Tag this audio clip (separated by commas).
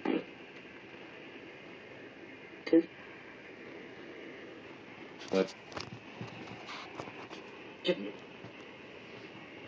Speech